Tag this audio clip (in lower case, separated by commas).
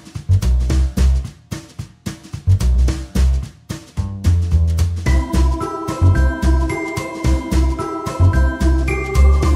music